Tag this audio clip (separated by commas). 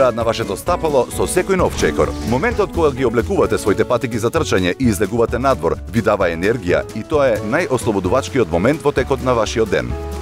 Music, Speech